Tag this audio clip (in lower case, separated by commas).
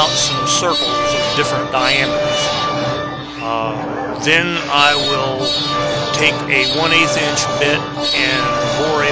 speech